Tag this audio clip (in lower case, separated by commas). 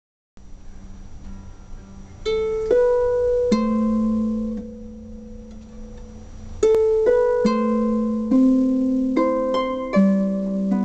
playing harp